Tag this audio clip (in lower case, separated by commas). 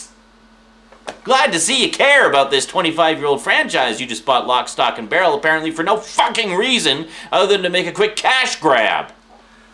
speech, inside a small room